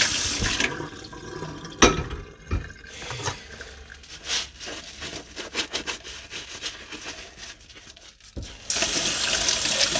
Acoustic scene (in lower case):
kitchen